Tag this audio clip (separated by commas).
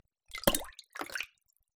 Liquid, Water, Splash